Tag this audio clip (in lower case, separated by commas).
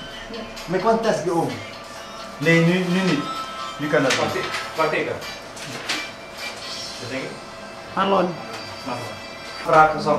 music, speech